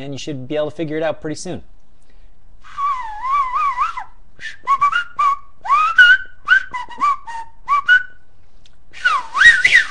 A man speaking and whistling